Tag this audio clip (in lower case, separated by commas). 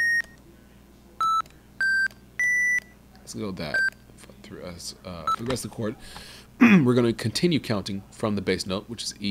inside a small room, speech